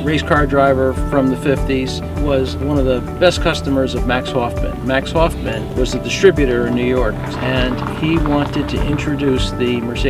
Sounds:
Music, Speech

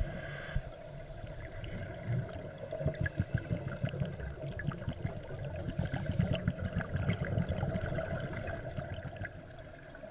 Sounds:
Gurgling

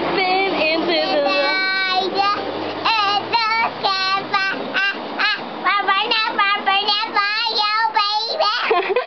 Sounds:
Child singing, Speech

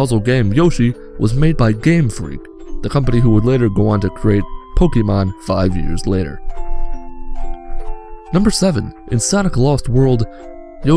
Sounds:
Speech, Music

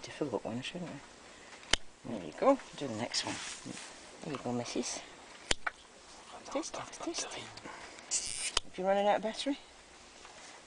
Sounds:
Speech, Animal

